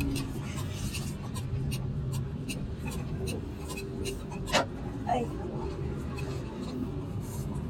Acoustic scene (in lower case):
car